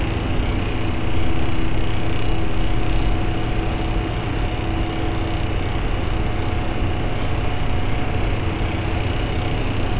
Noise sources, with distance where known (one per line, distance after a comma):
unidentified impact machinery, near